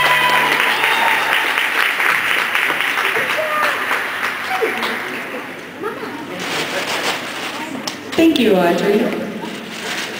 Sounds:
Speech, Applause

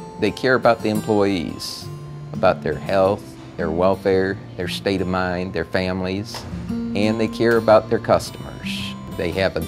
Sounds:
Speech, Music

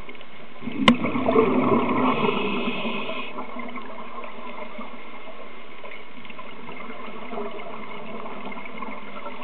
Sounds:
Gurgling

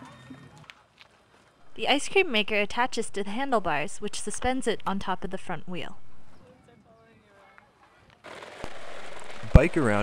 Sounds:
Speech

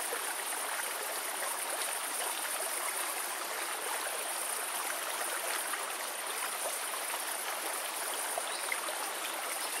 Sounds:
waterfall burbling

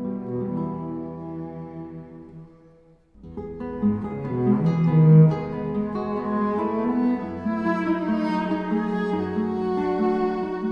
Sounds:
Soundtrack music, Music, Sad music

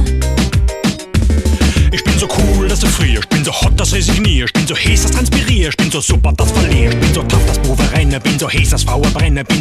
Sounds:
Music

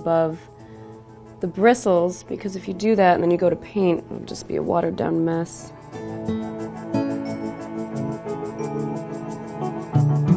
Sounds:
New-age music

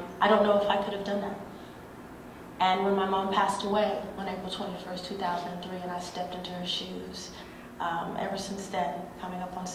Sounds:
Speech, Female speech

